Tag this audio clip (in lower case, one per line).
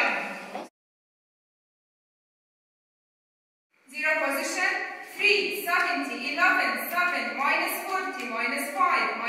speech